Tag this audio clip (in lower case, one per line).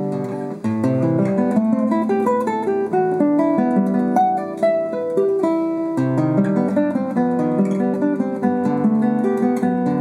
playing acoustic guitar
strum
plucked string instrument
acoustic guitar
music
musical instrument
guitar